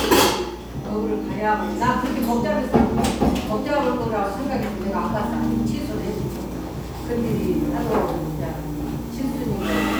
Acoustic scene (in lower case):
cafe